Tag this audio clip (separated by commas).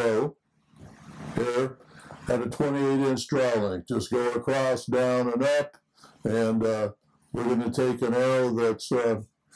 Speech